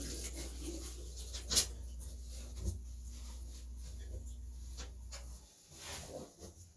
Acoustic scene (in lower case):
restroom